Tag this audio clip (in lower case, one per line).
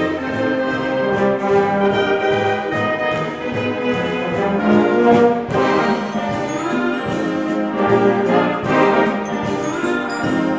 music